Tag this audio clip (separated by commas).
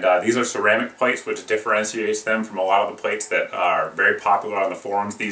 Speech